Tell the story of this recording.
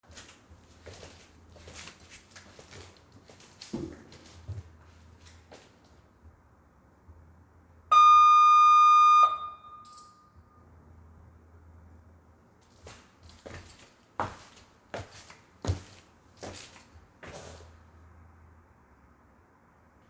A bell rang near the hallway entrance and I walked toward the door to check it.